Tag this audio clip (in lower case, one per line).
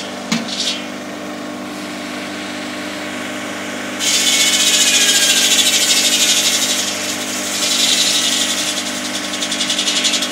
outside, rural or natural
power tool